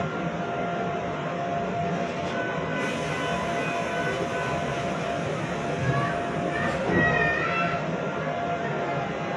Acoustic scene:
subway train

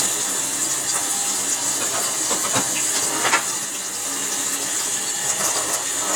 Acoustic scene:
kitchen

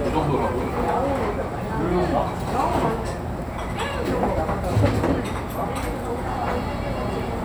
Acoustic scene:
restaurant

